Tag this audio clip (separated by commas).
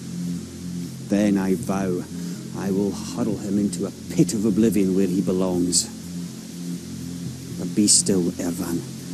White noise